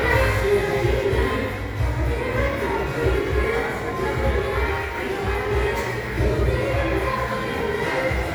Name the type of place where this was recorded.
crowded indoor space